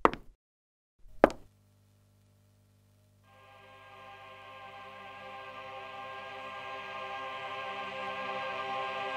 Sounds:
inside a large room or hall, Music

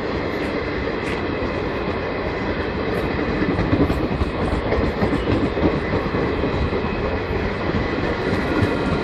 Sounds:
Vehicle

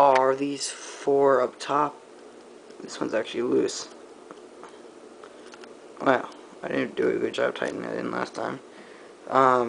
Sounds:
Speech

